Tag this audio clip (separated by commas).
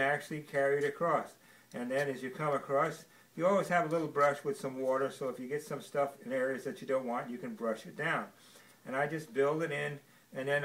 Speech